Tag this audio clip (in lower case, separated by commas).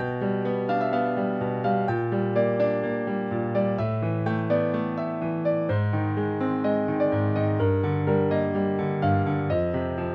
background music, music